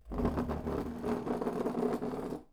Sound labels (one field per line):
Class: furniture moving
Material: wooden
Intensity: high